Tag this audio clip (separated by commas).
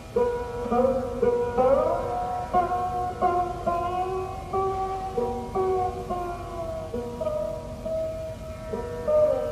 Plucked string instrument, Music, Musical instrument, Sitar